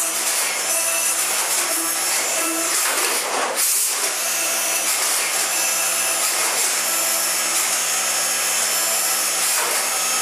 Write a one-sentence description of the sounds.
A large power tool starts and stops multiple times frequently